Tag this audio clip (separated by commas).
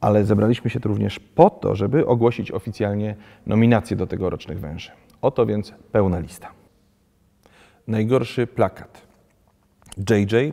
Speech, inside a large room or hall